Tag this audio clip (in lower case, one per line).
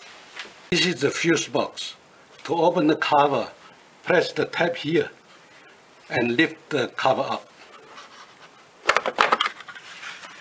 inside a small room
speech